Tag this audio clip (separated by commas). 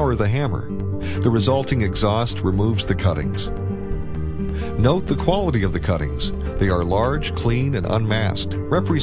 Speech, Music